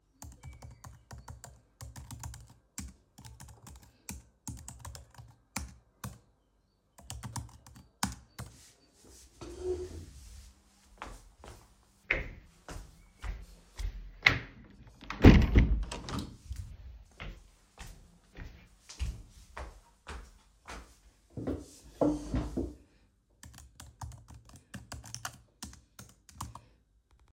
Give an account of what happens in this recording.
I was typing on my laptop, stood up and closed the window. I then came back to my desk and continued working on my laptop